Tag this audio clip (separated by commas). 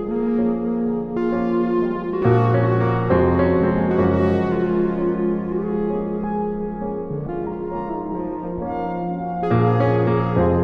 Music